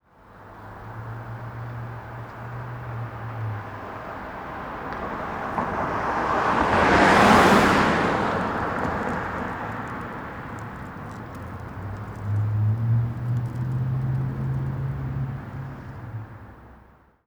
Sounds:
Car, Car passing by, Motor vehicle (road), Vehicle

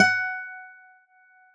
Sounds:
Plucked string instrument, Acoustic guitar, Musical instrument, Music, Guitar

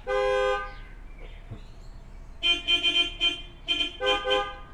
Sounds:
Car, Alarm, Vehicle, Motor vehicle (road), honking

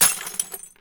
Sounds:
Glass, Shatter, Crushing

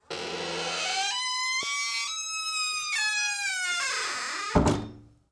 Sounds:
Slam, Door, Squeak, home sounds

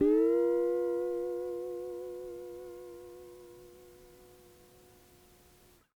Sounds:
Music, Musical instrument, Guitar, Plucked string instrument

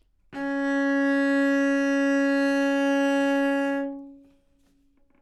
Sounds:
Musical instrument, Bowed string instrument, Music

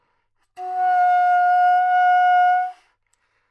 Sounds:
Music, Wind instrument, Musical instrument

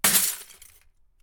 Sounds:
Shatter, Glass, Crushing

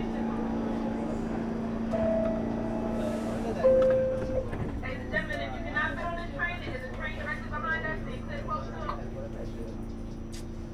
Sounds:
metro, Rail transport, Vehicle

